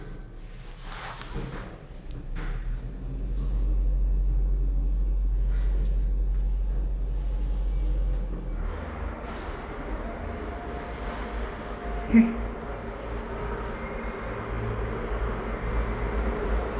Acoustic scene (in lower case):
elevator